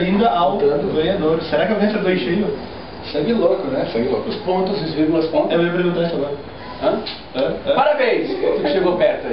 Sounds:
Speech

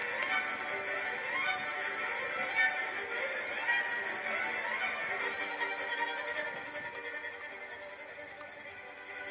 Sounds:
Violin, Music

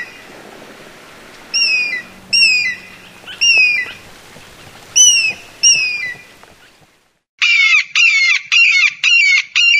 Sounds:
eagle screaming

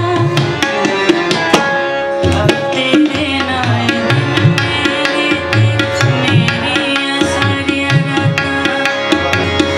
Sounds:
playing tabla

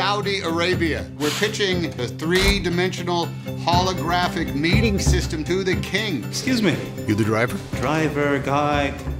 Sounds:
Music, Speech

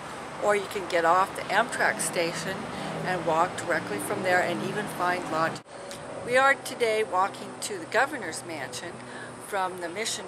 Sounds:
Speech

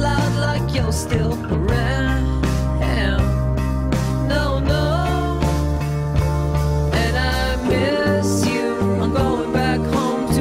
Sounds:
Music

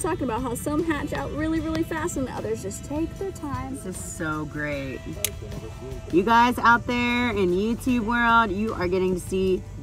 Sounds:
crocodiles hissing

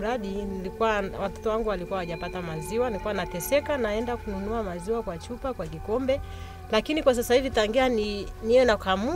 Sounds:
Speech, Bleat, Sheep, Music

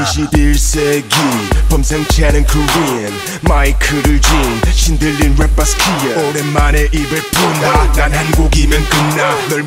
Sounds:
Hip hop music, Rapping, Music

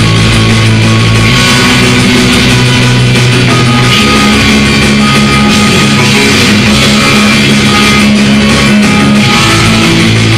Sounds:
Musical instrument, Bass guitar, Music, Guitar, Plucked string instrument, Rock music, Heavy metal

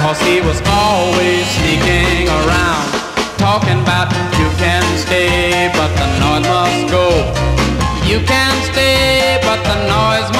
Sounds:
Musical instrument, Music

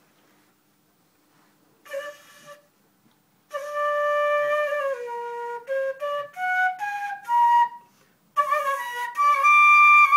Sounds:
Wind instrument, Flute

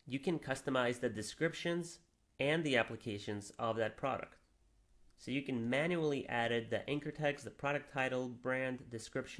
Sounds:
Speech

